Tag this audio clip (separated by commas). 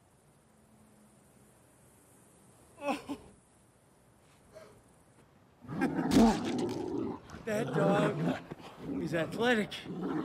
outside, rural or natural, Dog, Speech